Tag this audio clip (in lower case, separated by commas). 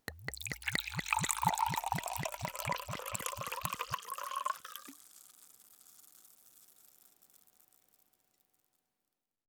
water, fill (with liquid), pour, trickle, liquid, gurgling